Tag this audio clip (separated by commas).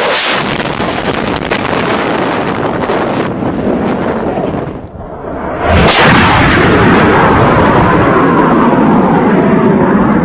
airplane flyby